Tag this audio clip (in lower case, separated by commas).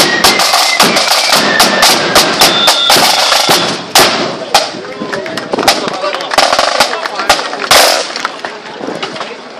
music, speech